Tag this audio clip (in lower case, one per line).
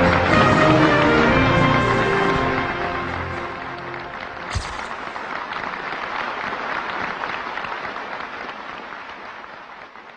music